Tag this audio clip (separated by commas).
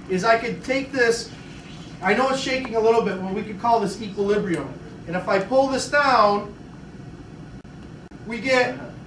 Speech